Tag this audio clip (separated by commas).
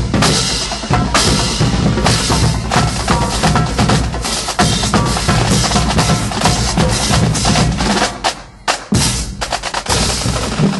Music, Percussion